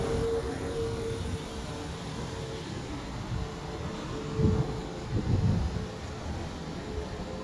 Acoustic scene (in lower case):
street